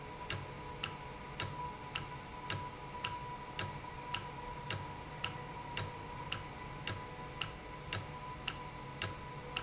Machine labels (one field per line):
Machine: valve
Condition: normal